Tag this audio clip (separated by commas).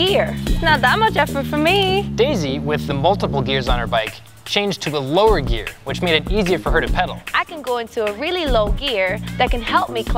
Music, Speech